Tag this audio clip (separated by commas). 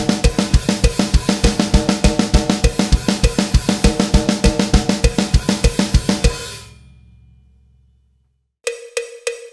playing bass drum